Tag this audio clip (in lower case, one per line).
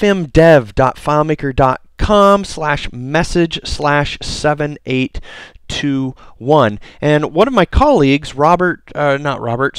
speech